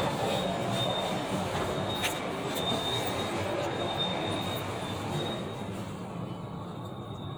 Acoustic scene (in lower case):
elevator